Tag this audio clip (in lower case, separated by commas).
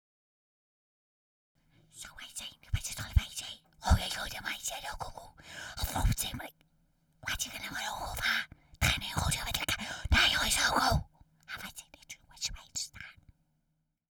human voice, whispering